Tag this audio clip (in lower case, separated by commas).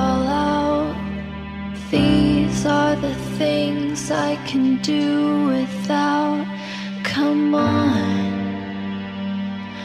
music